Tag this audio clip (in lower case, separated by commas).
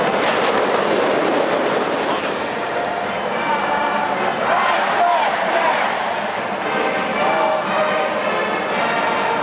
music, speech